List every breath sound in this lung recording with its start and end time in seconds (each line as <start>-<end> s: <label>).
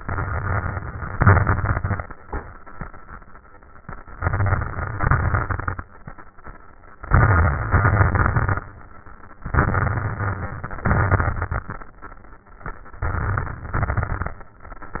0.00-1.12 s: crackles
0.00-1.13 s: inhalation
1.13-2.07 s: exhalation
1.13-2.07 s: crackles
4.19-4.99 s: inhalation
4.19-5.00 s: crackles
5.01-5.81 s: exhalation
5.01-5.81 s: crackles
7.06-7.72 s: inhalation
7.06-7.72 s: crackles
7.73-8.63 s: exhalation
7.73-8.63 s: crackles
9.46-10.85 s: inhalation
9.46-10.85 s: crackles
10.87-11.70 s: exhalation
10.87-11.70 s: crackles
13.00-13.75 s: inhalation
13.00-13.75 s: crackles
13.76-14.44 s: exhalation
13.76-14.44 s: crackles